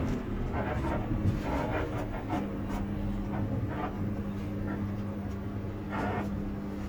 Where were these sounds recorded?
on a bus